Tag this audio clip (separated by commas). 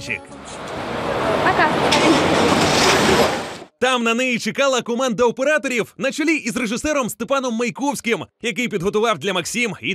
Speech